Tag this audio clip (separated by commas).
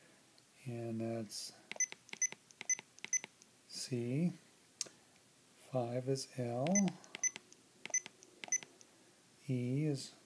Speech, inside a small room